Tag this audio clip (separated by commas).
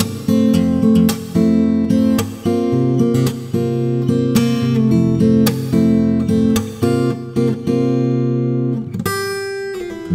Music, Acoustic guitar, Plucked string instrument, Guitar, Musical instrument